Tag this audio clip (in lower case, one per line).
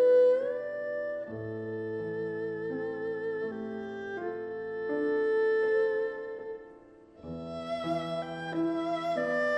playing erhu